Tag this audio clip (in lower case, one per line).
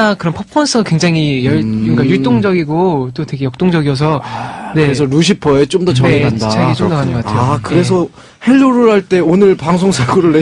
radio
speech